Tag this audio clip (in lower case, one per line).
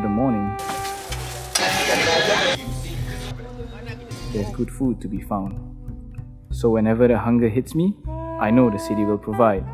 speech
music